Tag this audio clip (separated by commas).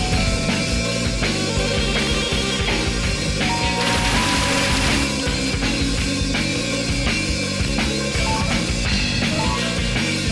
Music